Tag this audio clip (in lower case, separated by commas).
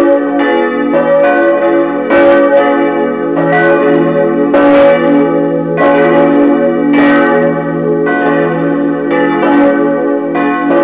bell, church bell